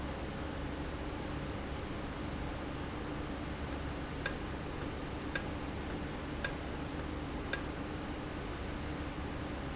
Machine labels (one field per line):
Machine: valve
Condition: normal